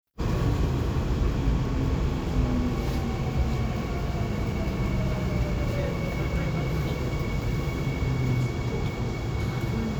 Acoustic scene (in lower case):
subway train